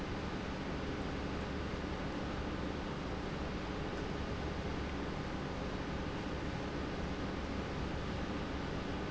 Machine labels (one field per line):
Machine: pump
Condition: normal